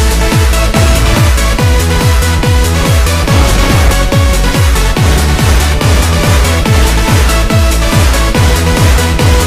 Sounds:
music, techno

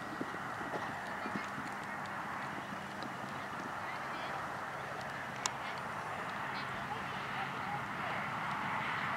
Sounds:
horse clip-clop

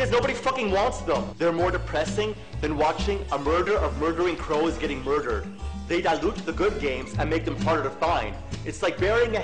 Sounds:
music, speech

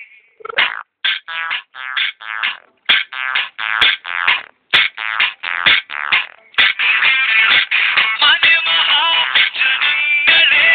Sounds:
outside, rural or natural, music

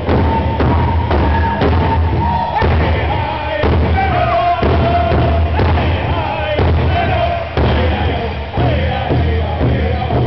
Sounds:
musical instrument, drum, bass drum, music

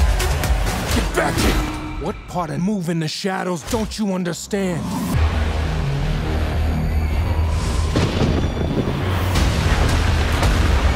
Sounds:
music, speech

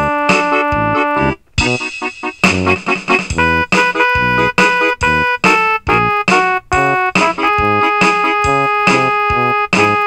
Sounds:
christian music, music

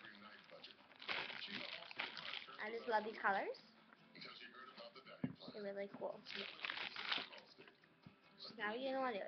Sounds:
inside a small room, speech, music, child speech

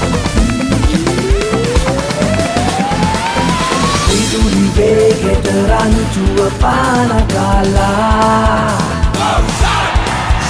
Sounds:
music

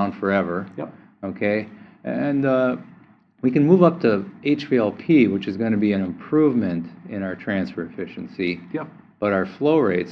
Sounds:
speech

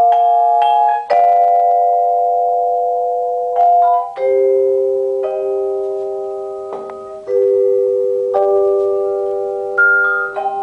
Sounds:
percussion, music, musical instrument, vibraphone, marimba

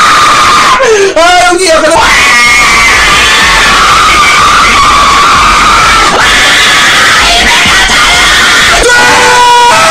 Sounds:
screaming, people screaming, speech

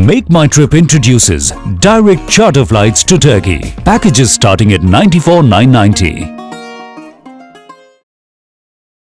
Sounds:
speech, music

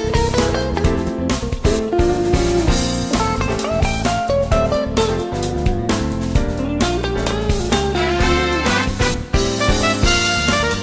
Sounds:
music

